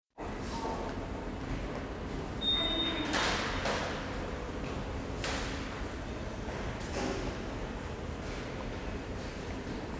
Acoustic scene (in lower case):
subway station